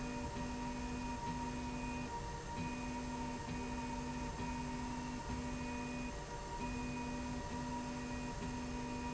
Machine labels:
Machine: slide rail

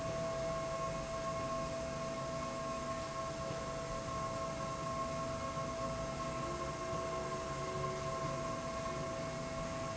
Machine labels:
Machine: slide rail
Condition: normal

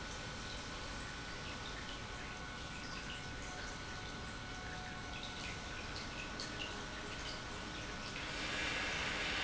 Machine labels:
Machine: pump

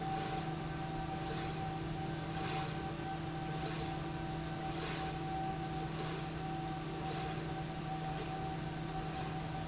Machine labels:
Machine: slide rail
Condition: normal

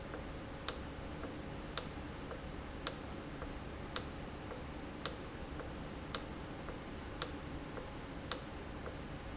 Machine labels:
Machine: valve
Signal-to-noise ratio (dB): 0 dB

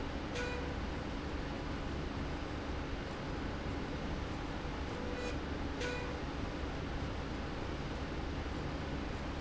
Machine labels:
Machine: slide rail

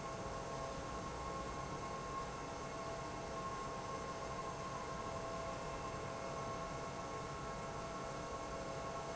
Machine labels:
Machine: pump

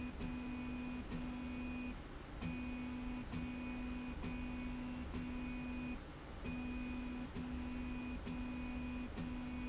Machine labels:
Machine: slide rail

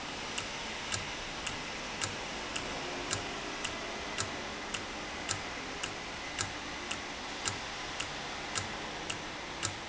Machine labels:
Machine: valve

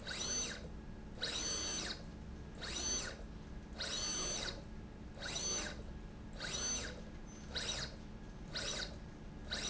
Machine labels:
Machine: slide rail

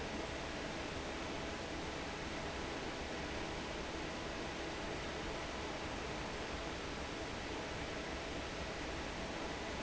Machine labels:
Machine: fan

